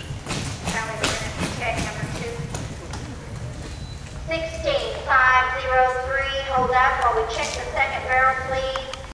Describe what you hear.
A woman speaks while a horse trots